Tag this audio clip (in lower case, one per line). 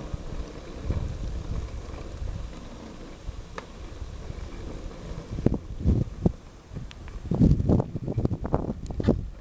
vehicle